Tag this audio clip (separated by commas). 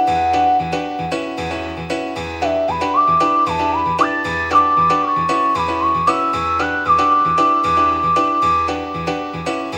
Music